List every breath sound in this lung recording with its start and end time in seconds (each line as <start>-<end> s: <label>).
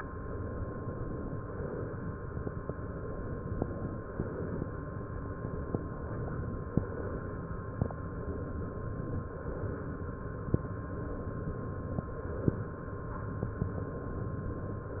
1.48-2.12 s: inhalation
3.95-4.60 s: inhalation
9.46-10.11 s: inhalation